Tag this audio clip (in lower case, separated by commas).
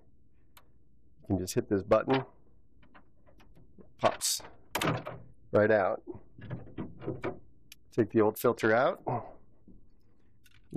speech